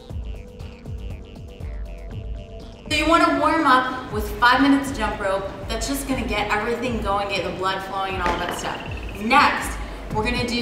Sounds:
speech
music

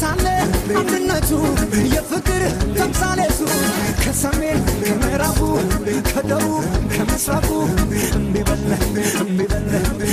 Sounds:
music

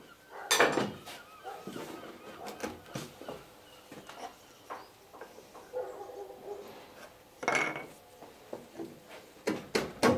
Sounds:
wood

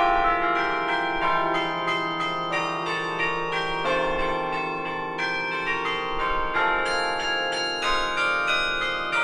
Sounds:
change ringing (campanology)

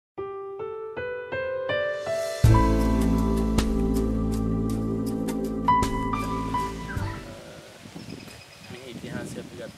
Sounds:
speech
music
outside, rural or natural

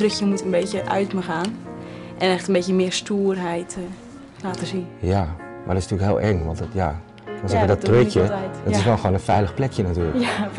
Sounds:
speech
music

